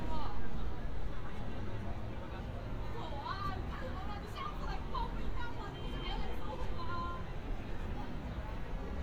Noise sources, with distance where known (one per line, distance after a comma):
car horn
person or small group talking
person or small group shouting